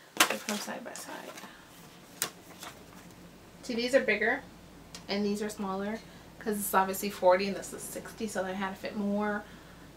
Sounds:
speech

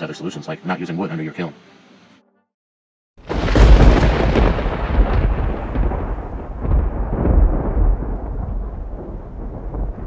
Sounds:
speech

